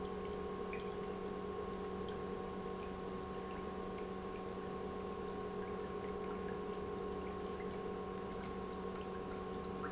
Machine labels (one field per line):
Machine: pump